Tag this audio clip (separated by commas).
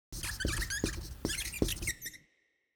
home sounds, Writing, Squeak